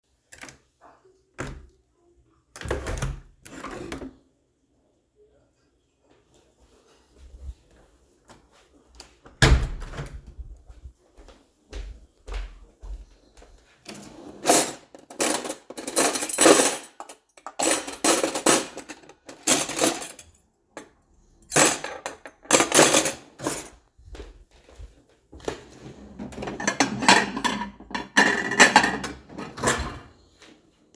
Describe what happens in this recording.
Opened window, sorted cutlery and dishes into drawer, closed drawer.